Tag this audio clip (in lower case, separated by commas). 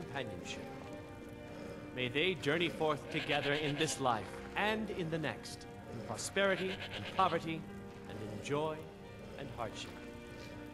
music, sheep, speech